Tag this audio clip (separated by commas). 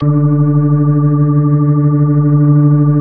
Music, Keyboard (musical), Organ, Musical instrument